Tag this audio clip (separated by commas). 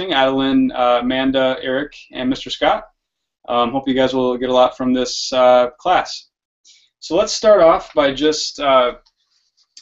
Speech